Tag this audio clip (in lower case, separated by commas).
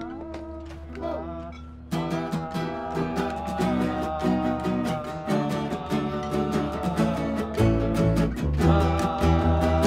music